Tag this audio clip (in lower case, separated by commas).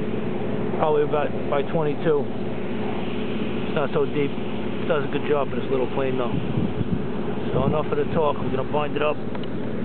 speech